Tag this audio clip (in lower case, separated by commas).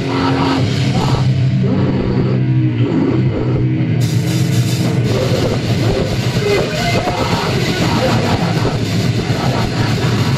rock music, music